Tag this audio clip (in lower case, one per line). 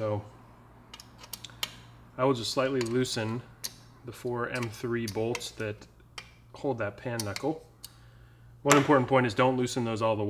speech